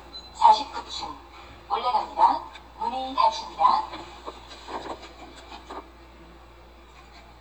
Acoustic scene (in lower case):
elevator